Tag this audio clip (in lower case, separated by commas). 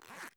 home sounds, zipper (clothing)